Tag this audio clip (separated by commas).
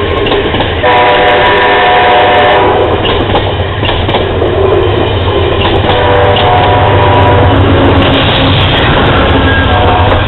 Rail transport, train wagon, Train, Vehicle